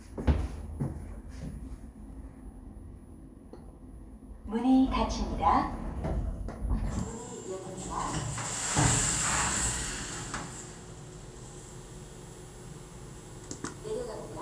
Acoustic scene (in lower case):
elevator